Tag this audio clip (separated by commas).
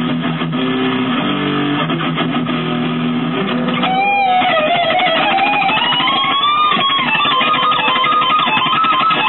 Plucked string instrument, Musical instrument, Electric guitar, Acoustic guitar, Music, Guitar